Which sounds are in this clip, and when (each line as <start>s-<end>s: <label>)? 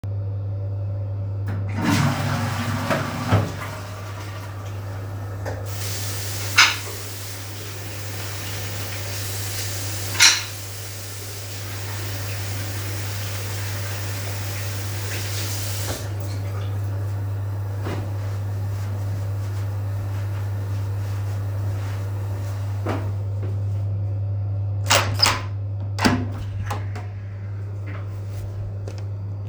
1.4s-23.4s: toilet flushing
5.4s-18.0s: running water
24.0s-28.0s: door